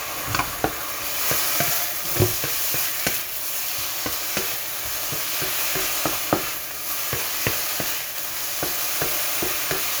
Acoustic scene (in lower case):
kitchen